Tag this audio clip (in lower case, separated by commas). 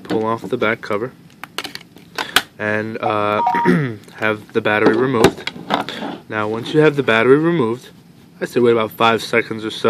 dtmf, telephone, speech